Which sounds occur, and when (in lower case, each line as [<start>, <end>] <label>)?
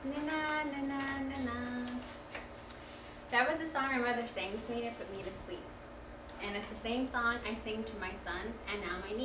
[0.00, 2.25] female singing
[0.00, 9.24] mechanisms
[0.93, 1.05] tick
[1.31, 1.81] generic impact sounds
[1.85, 1.91] tick
[2.02, 2.12] tick
[2.31, 2.38] tick
[2.63, 2.72] tick
[2.83, 3.24] breathing
[3.27, 5.64] woman speaking
[6.37, 9.24] woman speaking